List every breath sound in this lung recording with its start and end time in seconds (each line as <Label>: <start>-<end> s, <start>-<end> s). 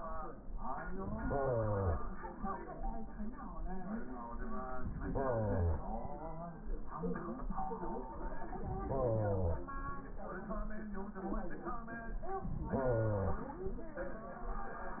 Inhalation: 1.06-2.08 s, 4.92-5.93 s, 8.71-9.73 s, 12.63-13.58 s